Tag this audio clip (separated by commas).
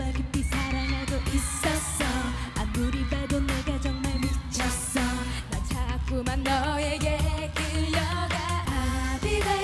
Dance music, Blues, Music, Soundtrack music